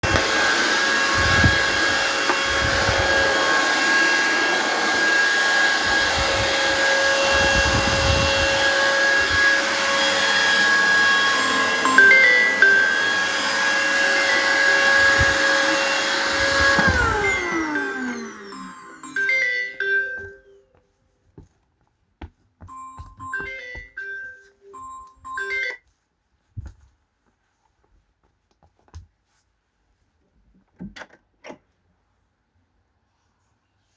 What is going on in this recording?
I was vacuum cleaning when my phone started ringing. I turned off the vacuum cleaner and walked toward the phone. I stopped the ringing sound, opened the door, and went outside.